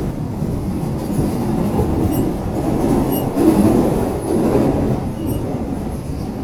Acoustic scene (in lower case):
subway station